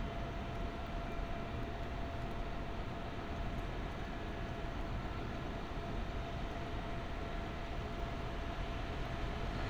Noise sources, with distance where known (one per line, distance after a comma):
engine of unclear size, far